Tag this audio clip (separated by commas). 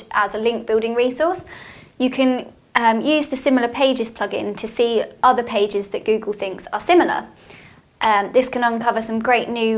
Speech